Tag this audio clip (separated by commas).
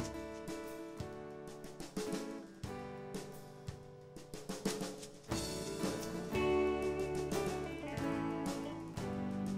Drum roll, Music, Hi-hat